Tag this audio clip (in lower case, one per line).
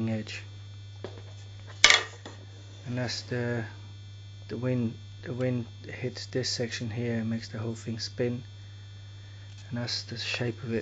speech